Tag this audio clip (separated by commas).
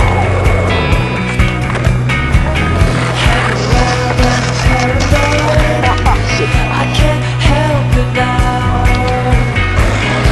Skateboard